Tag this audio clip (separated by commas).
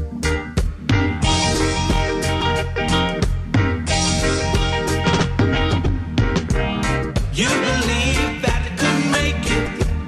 Blues, Music, Pop music